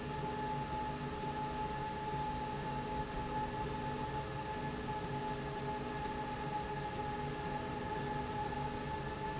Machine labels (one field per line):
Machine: slide rail